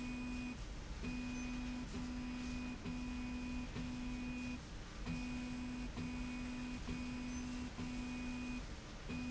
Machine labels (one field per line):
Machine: slide rail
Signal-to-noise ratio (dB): 6 dB